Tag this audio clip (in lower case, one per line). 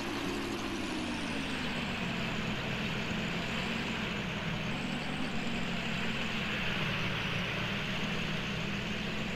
vehicle
ocean